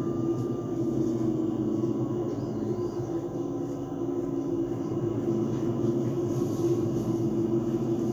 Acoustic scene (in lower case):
bus